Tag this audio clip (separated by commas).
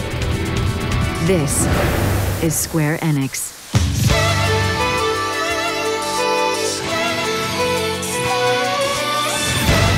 Music, Speech